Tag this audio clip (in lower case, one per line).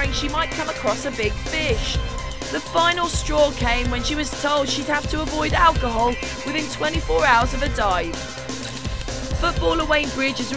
speech
music